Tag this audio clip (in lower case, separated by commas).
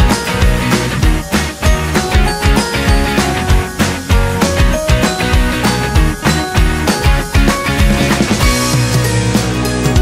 music